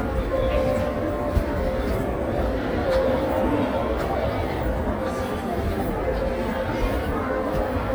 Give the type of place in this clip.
crowded indoor space